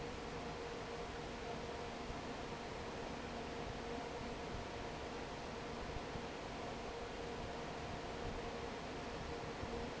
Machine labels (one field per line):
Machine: fan